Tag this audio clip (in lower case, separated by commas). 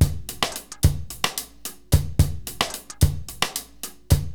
musical instrument, drum, percussion, drum kit, music